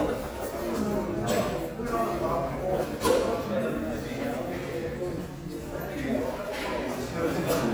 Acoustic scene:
crowded indoor space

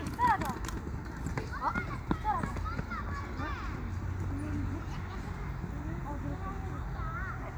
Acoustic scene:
park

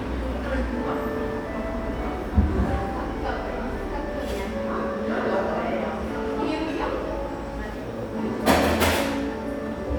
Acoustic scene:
cafe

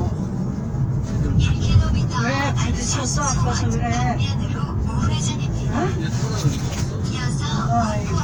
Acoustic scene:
car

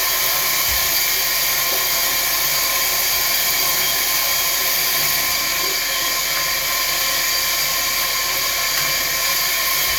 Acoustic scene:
restroom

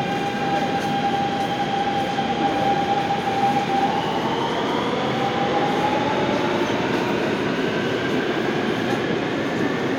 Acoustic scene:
subway station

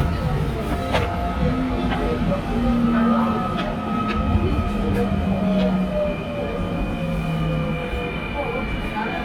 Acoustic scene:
subway train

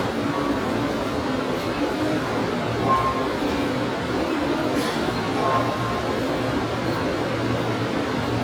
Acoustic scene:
subway station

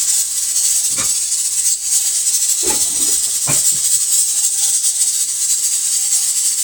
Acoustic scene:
kitchen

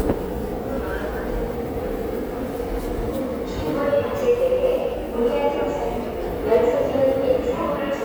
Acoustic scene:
subway station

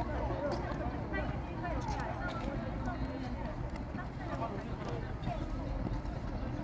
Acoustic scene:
park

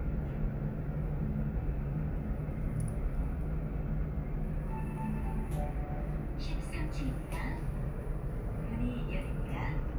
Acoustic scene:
elevator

